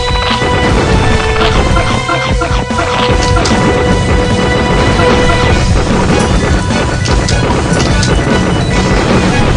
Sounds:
music

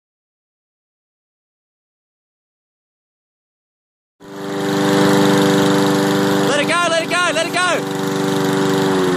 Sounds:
lawn mowing
engine
lawn mower

